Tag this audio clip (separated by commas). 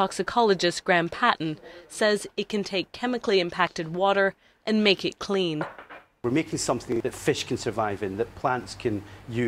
Speech